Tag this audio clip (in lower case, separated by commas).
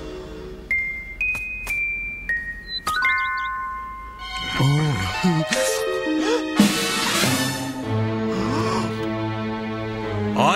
music, outside, rural or natural